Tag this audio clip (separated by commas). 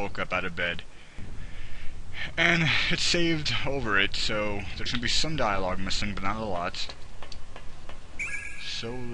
Speech